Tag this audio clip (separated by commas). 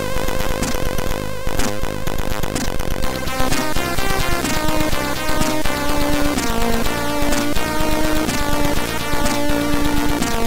Music